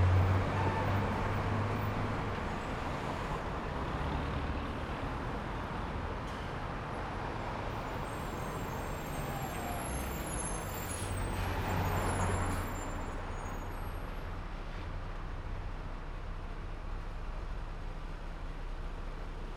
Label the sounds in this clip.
car, bus, car wheels rolling, bus engine accelerating, bus wheels rolling, bus compressor, bus brakes, bus engine idling